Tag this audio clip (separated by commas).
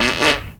Fart